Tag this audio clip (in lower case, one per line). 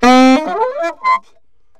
woodwind instrument
music
musical instrument